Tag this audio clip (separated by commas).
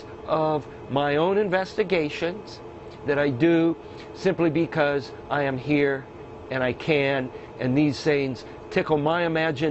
Speech